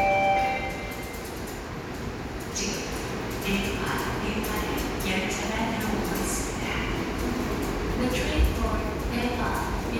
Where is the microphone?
in a subway station